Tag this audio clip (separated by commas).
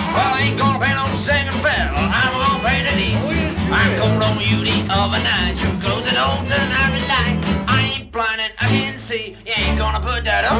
Music, Violin, Musical instrument, Orchestra